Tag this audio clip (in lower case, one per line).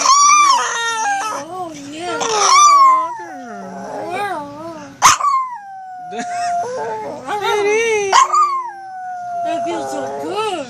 dog howling